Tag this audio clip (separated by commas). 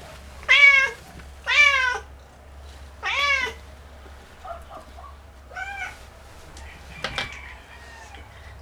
Animal, pets, Meow, Cat